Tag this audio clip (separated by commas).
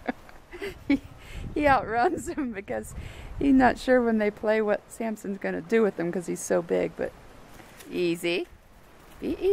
Speech